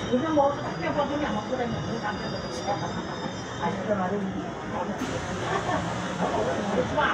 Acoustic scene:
subway train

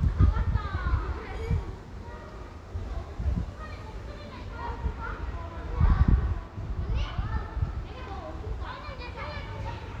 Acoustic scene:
residential area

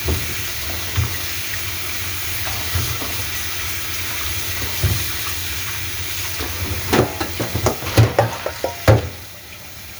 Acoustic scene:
kitchen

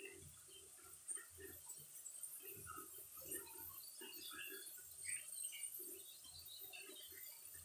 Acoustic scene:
restroom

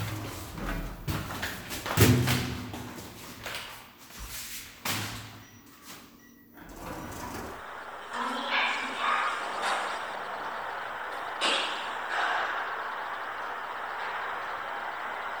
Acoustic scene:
elevator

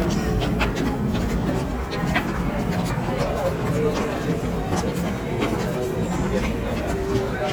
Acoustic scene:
subway station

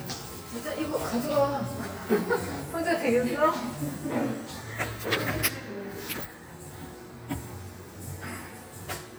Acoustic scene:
cafe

